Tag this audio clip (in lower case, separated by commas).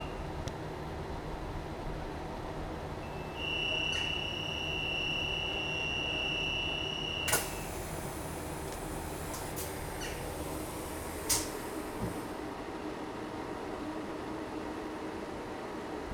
rail transport, vehicle, train